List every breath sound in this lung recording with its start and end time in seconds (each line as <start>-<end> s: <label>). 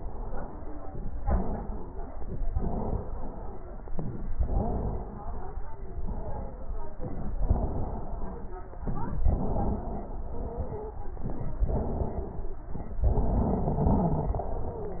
0.00-0.59 s: inhalation
0.00-0.59 s: wheeze
1.16-2.48 s: exhalation
1.16-2.48 s: wheeze
2.53-3.84 s: exhalation
2.53-3.84 s: wheeze
3.91-4.34 s: inhalation
3.91-4.34 s: wheeze
4.41-5.59 s: exhalation
4.41-5.59 s: wheeze
5.78-6.96 s: exhalation
5.78-6.96 s: wheeze
7.03-7.43 s: inhalation
7.03-7.43 s: wheeze
7.47-8.74 s: exhalation
7.47-8.74 s: wheeze
8.85-9.25 s: inhalation
8.85-9.25 s: wheeze
9.27-10.98 s: exhalation
9.27-10.98 s: wheeze
11.17-11.66 s: inhalation
11.17-11.66 s: wheeze
11.69-12.62 s: exhalation
11.69-12.62 s: wheeze
12.73-13.05 s: inhalation
12.73-13.05 s: wheeze
13.07-15.00 s: exhalation
13.07-15.00 s: wheeze